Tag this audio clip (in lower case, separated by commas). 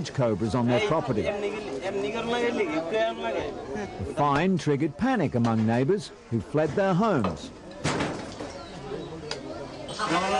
outside, rural or natural, speech